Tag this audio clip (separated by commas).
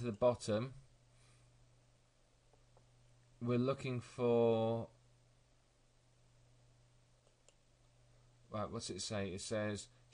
Speech